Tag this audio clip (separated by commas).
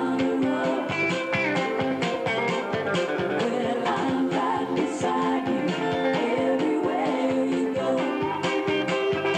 Plucked string instrument, Guitar, Musical instrument, Music, Acoustic guitar